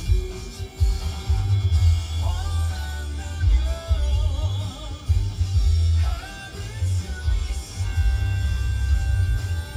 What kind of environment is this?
car